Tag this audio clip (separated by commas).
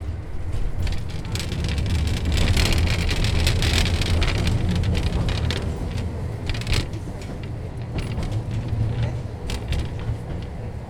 Vehicle